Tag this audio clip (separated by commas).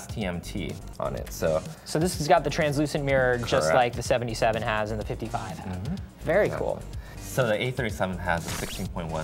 Speech, Music